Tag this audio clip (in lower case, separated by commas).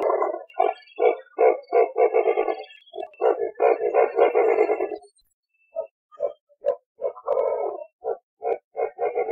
owl hooting